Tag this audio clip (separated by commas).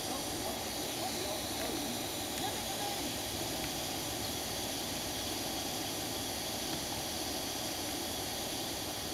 Speech